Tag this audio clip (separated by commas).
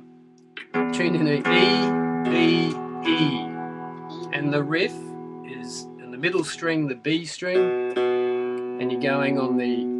Speech, Musical instrument, Guitar, Music